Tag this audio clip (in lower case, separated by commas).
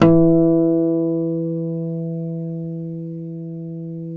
guitar, musical instrument, music, acoustic guitar, plucked string instrument